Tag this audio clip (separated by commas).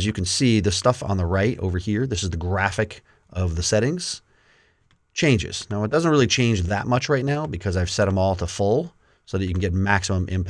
Speech